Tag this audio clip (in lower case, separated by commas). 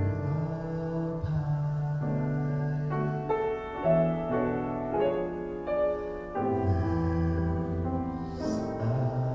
male singing, music